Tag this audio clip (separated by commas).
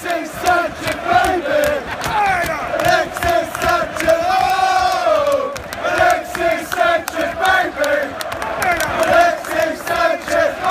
Male singing